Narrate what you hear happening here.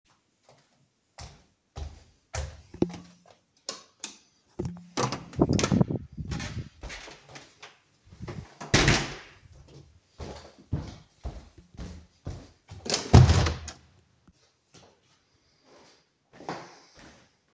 I switch the light two times then close the door and go to the other side of the living room to close another door